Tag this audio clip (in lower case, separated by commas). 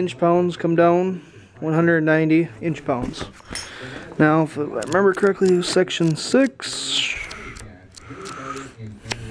speech